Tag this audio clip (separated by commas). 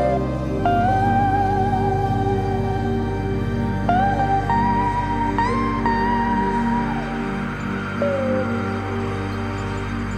Music